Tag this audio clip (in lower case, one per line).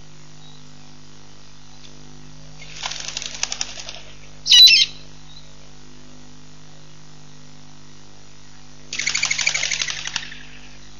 outside, rural or natural
pigeon
animal